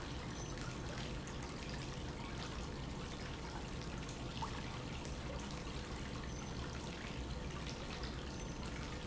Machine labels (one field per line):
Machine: pump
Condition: normal